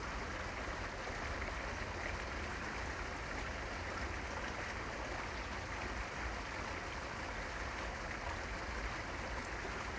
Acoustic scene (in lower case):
park